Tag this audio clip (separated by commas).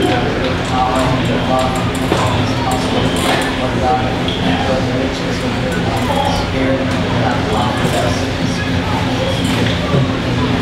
Speech